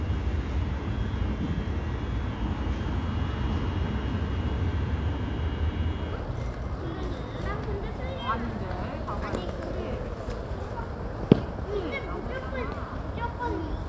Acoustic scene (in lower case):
residential area